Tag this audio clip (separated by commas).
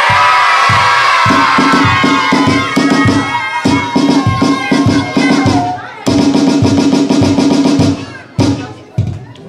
Music, Speech